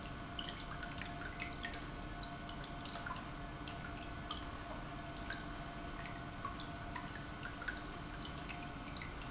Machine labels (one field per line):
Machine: pump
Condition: normal